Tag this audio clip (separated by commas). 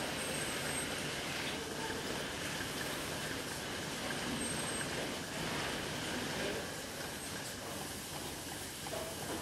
Speech